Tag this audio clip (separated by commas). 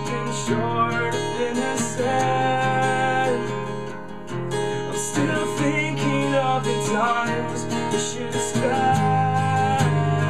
Music